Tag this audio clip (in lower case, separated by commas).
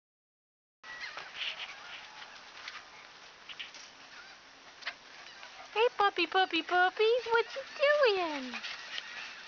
pets, speech, animal, dog